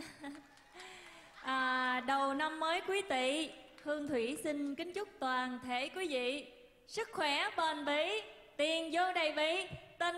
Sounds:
Speech

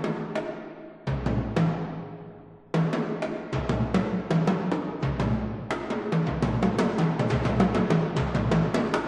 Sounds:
Drum, Percussion, Music, Musical instrument, Drum kit

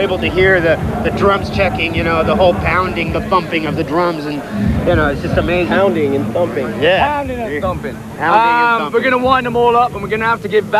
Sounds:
Music, Speech

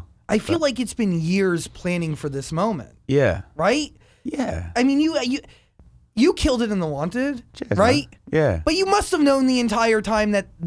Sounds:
Speech

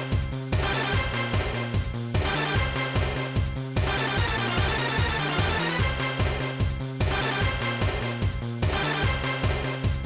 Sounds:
Pop music, Video game music, Music

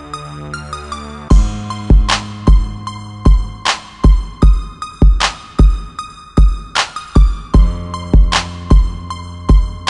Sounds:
Music

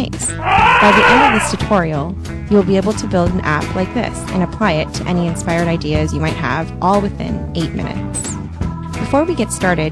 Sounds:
Music, Speech

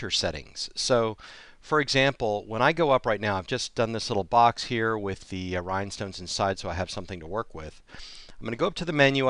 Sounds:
Speech

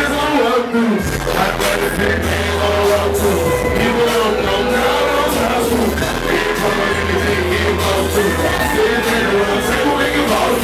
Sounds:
Music

